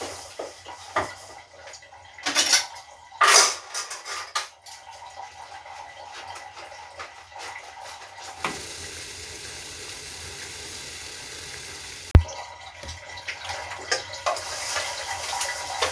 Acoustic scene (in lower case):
kitchen